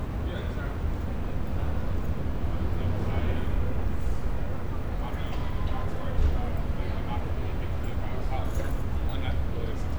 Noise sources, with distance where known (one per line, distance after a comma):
person or small group talking, near